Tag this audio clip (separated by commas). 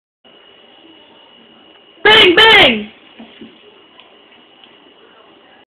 Speech